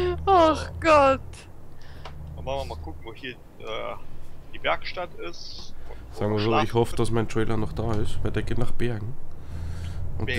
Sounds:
speech
vehicle

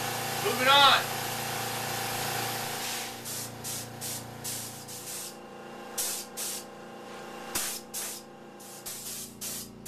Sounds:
tools

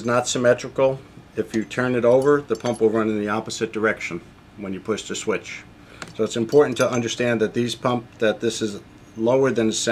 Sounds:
speech

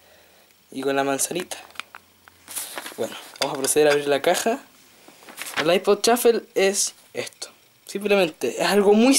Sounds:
speech

